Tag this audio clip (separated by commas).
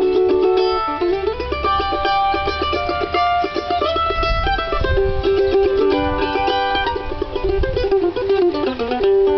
Mandolin, Music